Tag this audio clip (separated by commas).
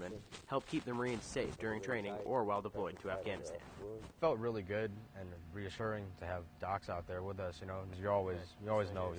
Speech